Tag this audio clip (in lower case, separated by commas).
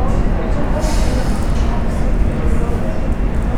rail transport, vehicle, underground